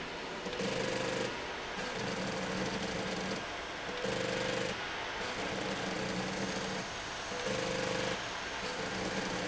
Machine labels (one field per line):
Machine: slide rail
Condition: abnormal